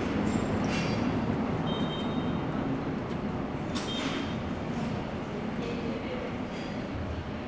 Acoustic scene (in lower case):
subway station